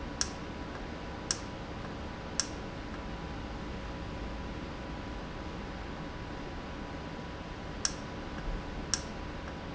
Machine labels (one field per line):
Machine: valve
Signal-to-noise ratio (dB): -6 dB